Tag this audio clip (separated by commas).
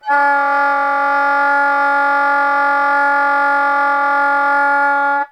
Wind instrument, Musical instrument, Music